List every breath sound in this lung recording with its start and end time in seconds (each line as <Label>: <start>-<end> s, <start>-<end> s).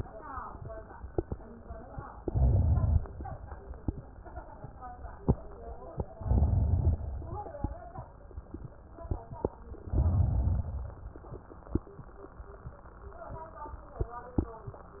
Inhalation: 2.22-3.00 s, 6.19-6.96 s, 9.94-10.72 s